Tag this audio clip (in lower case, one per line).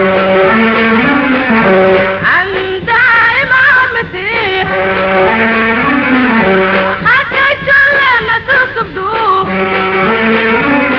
music
soundtrack music